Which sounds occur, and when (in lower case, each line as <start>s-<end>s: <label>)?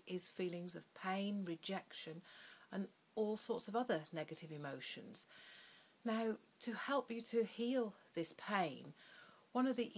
0.0s-9.9s: background noise
0.0s-2.2s: woman speaking
2.1s-2.6s: breathing
2.6s-2.9s: woman speaking
3.1s-5.2s: woman speaking
5.3s-6.0s: breathing
6.0s-6.3s: woman speaking
6.6s-7.9s: woman speaking
8.0s-8.8s: woman speaking
9.0s-9.5s: breathing
9.5s-9.9s: woman speaking